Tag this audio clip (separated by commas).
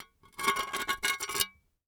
dishes, pots and pans, home sounds